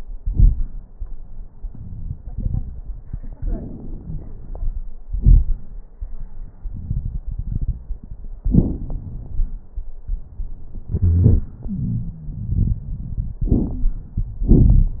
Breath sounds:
Inhalation: 3.39-4.80 s, 8.35-9.55 s, 13.44-13.89 s
Exhalation: 5.06-5.61 s, 10.91-11.52 s, 14.42-15.00 s
Wheeze: 10.91-11.52 s, 11.67-12.80 s
Crackles: 3.39-4.80 s, 5.06-5.61 s, 8.35-9.55 s, 13.44-13.89 s, 14.42-15.00 s

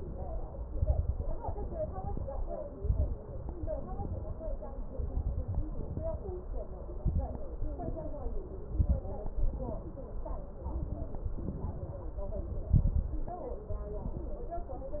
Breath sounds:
Inhalation: 0.72-1.42 s, 2.75-3.17 s, 4.92-5.62 s, 6.99-7.45 s, 8.80-9.25 s, 10.62-11.36 s, 12.73-13.47 s
Exhalation: 1.42-2.13 s, 3.63-4.33 s, 5.72-6.42 s, 7.64-8.38 s, 9.42-10.16 s, 11.40-12.14 s
Crackles: 0.72-1.42 s, 2.75-3.17 s, 4.92-5.62 s, 6.99-7.45 s, 8.80-9.25 s, 10.62-11.36 s, 12.73-13.47 s

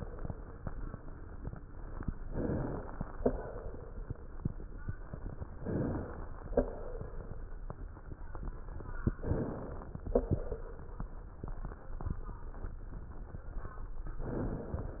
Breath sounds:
Inhalation: 2.20-3.14 s, 5.57-6.51 s, 9.17-10.11 s, 14.20-15.00 s
Exhalation: 3.14-4.26 s, 6.51-7.63 s, 10.11-11.29 s

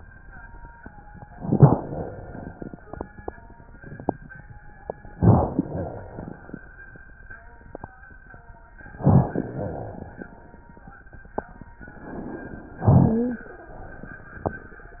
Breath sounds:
Inhalation: 1.37-2.66 s, 5.14-6.43 s, 8.99-10.10 s, 12.88-13.55 s
Wheeze: 12.88-13.55 s
Crackles: 1.37-2.66 s, 5.14-6.43 s, 8.99-10.10 s

